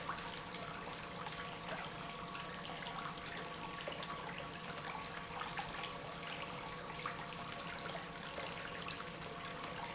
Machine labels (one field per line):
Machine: pump